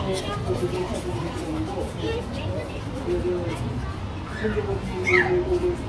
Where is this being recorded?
in a park